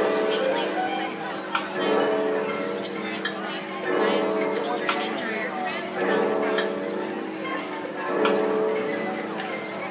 Crowd noises, a female speaking, clinks, and a clock donging blend together